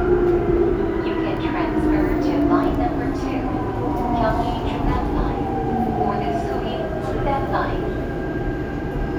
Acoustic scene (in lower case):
subway train